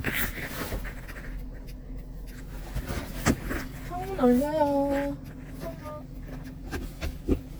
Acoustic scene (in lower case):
car